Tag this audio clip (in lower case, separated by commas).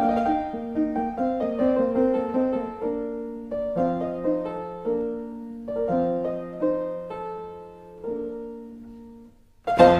piano, music, musical instrument